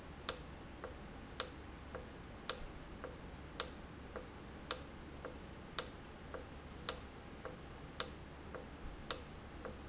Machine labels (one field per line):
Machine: valve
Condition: normal